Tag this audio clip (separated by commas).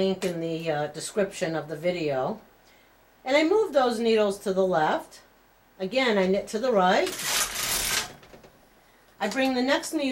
Speech